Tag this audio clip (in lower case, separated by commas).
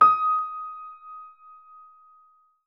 keyboard (musical), music, musical instrument, piano